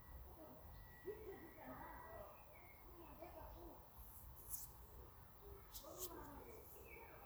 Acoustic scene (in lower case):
park